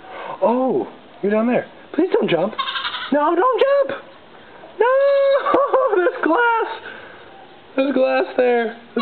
A person talks and then laughs as a goat bleats in the distance